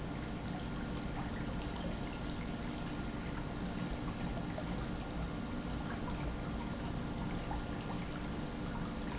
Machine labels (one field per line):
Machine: pump